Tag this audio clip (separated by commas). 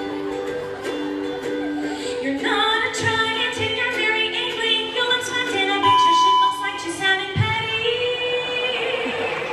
Female singing, Music, Speech